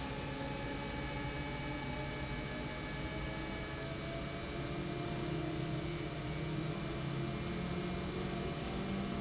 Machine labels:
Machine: pump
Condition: normal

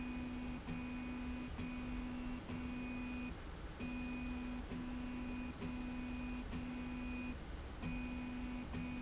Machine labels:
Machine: slide rail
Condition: normal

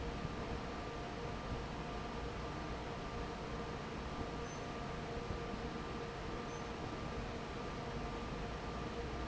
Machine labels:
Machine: fan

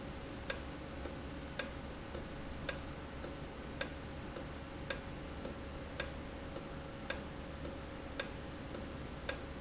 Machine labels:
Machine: valve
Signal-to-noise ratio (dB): 0 dB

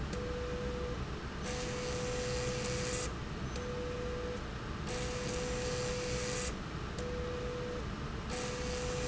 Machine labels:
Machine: slide rail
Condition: abnormal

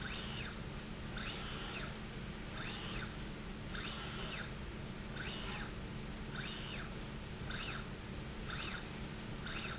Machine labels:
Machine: slide rail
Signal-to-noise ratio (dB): 0 dB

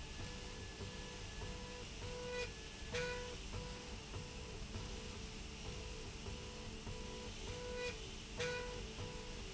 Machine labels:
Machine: slide rail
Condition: normal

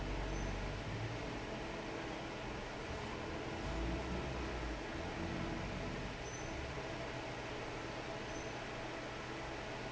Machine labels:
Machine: fan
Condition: normal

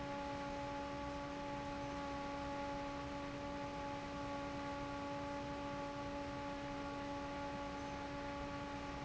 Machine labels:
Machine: fan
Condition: normal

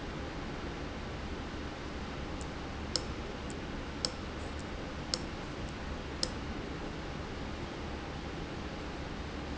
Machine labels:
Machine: valve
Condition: abnormal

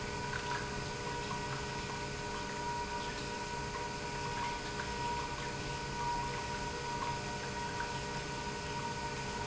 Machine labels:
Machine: pump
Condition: normal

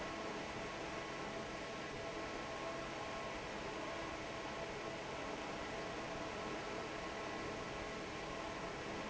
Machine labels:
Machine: fan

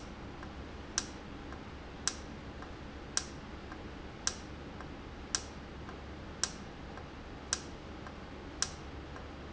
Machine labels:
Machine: valve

